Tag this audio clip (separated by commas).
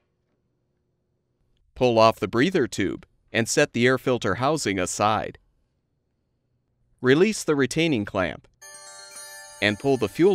Music, Speech